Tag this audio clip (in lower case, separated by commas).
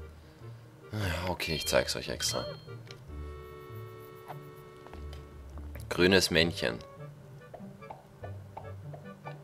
music, speech